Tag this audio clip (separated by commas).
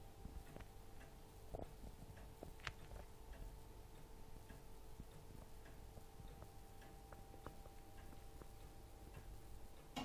Tick-tock, Tick